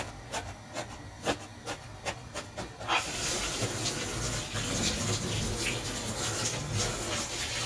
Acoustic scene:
kitchen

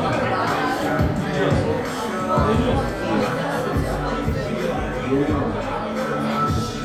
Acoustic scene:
crowded indoor space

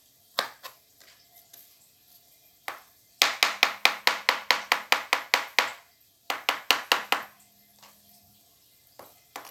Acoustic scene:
kitchen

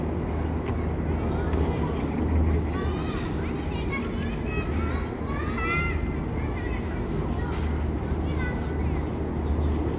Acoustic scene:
residential area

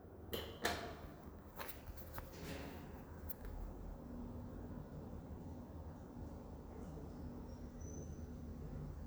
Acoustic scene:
elevator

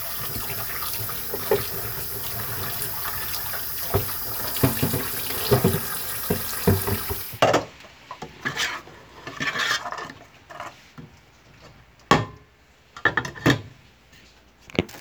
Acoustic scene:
kitchen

